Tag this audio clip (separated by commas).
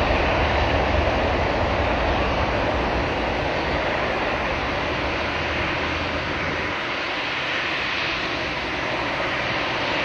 Wind, Wind noise (microphone)